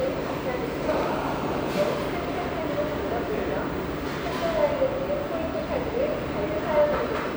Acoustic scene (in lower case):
restaurant